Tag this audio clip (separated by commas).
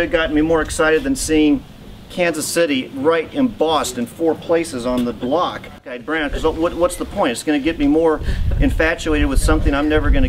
Speech